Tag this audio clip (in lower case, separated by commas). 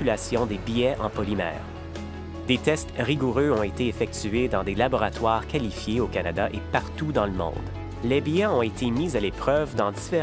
speech, music